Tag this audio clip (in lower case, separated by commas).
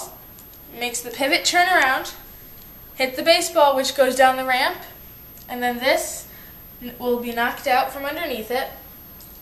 speech